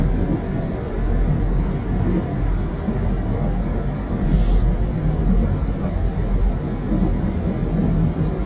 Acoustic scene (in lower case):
subway train